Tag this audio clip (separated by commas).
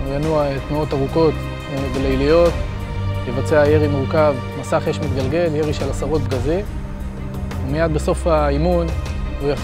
Music, Speech